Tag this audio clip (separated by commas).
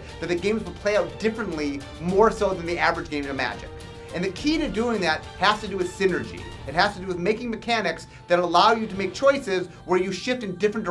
Music, Speech